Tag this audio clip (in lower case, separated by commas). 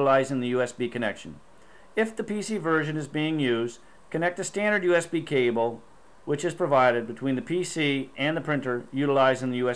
speech